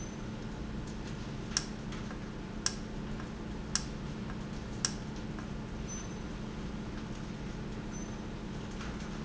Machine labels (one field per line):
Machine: valve